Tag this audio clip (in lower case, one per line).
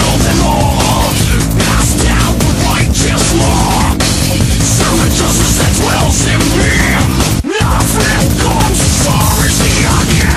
angry music
music